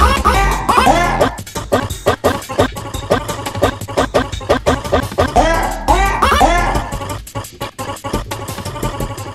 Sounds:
Music

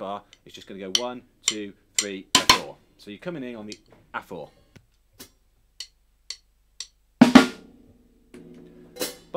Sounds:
Bass drum, Speech, Music, Drum, Musical instrument

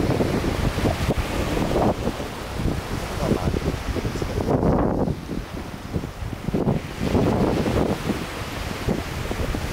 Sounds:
Wind noise (microphone), Wind, ocean burbling, surf, Ocean

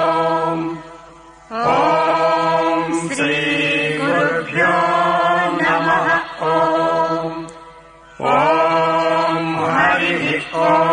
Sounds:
Mantra, Music

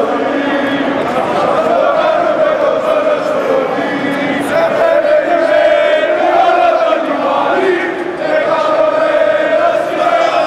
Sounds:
Speech

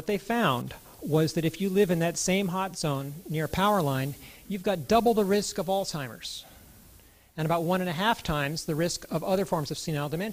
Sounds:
Speech

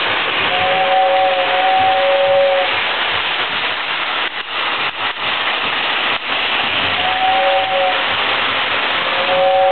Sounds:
Engine, Vehicle

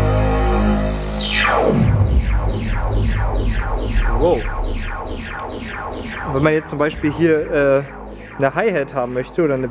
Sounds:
Music, Electronic music, Speech, Techno

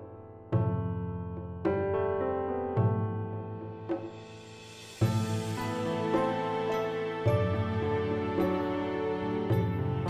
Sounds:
hair dryer drying

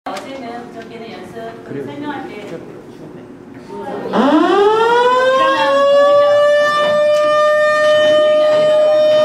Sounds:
civil defense siren

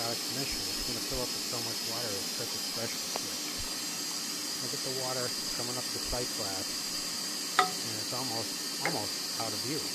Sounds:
Speech

